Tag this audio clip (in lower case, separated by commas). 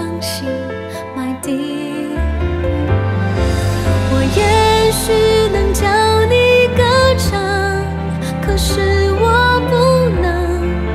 people humming